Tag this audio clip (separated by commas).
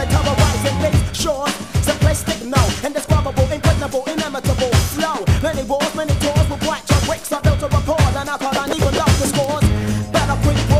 Music